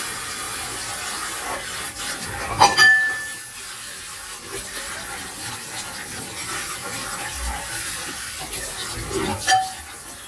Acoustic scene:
kitchen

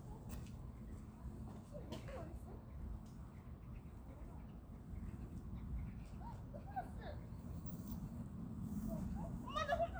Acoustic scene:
park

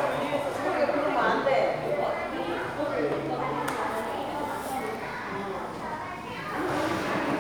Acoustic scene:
crowded indoor space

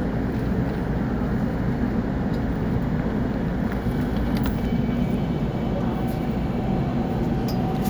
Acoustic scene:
subway station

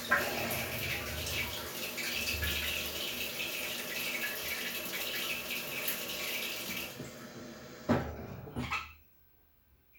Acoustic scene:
restroom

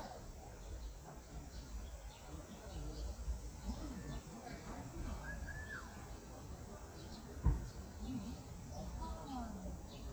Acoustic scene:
park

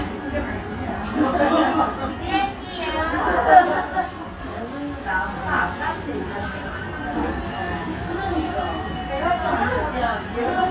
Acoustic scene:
restaurant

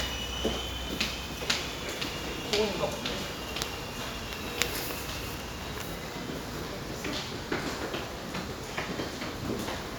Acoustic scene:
subway station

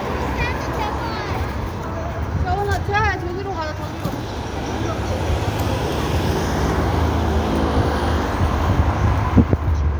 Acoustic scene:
street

